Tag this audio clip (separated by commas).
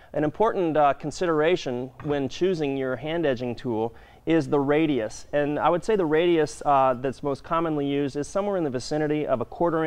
Speech